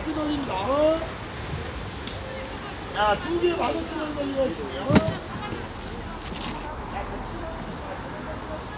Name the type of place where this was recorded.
street